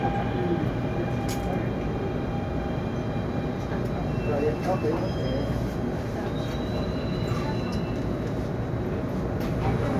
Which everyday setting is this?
subway train